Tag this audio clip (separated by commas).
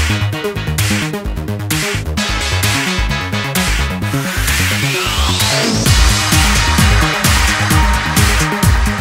Trance music, Music